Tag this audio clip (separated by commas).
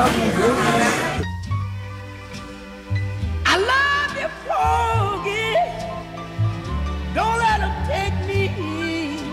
Speech, Music